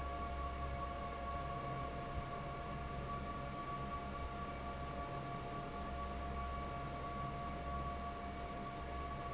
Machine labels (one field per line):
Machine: fan